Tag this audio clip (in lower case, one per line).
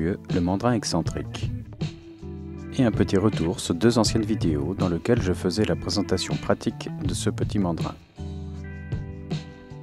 speech
music